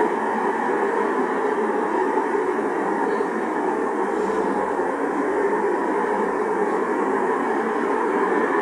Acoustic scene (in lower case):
street